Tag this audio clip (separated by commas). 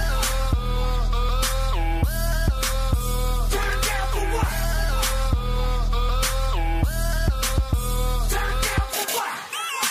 Music